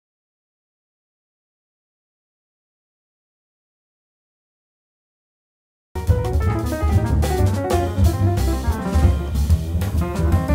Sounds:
playing piano

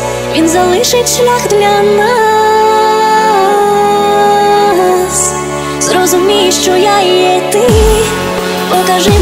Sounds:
music

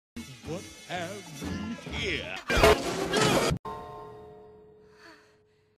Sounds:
speech
music

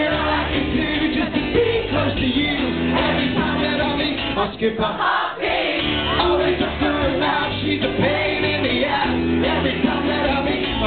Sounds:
speech
music

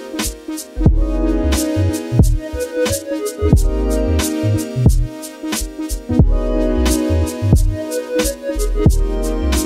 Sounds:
music

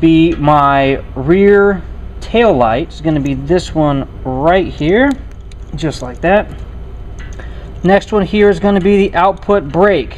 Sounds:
speech

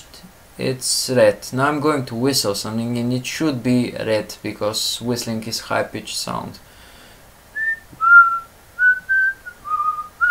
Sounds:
speech

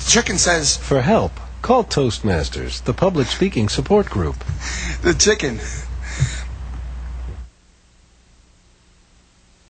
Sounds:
narration
male speech
speech

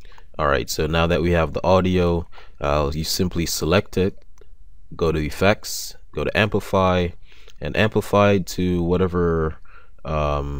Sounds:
speech

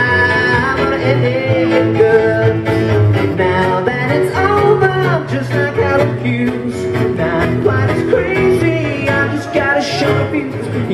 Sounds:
music

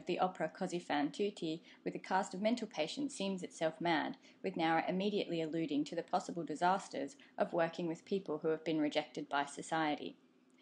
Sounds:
monologue
woman speaking
speech

